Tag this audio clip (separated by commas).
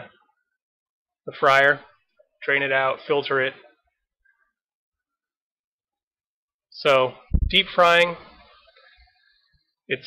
Speech